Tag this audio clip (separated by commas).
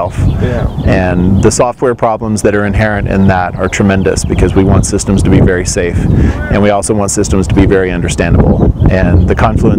Speech